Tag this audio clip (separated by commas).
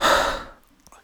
Breathing, Respiratory sounds